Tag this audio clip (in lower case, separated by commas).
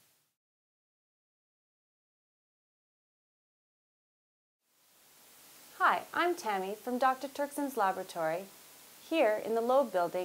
speech